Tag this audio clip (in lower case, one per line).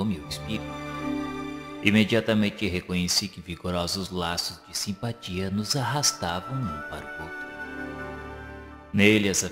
speech
music